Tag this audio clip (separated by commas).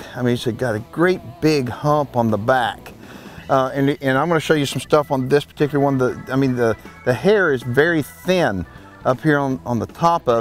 Speech, Music